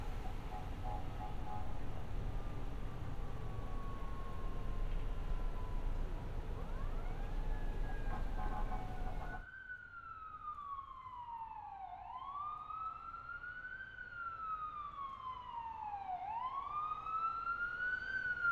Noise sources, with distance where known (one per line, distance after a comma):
siren